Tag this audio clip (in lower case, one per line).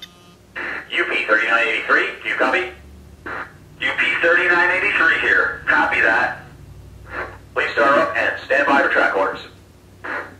speech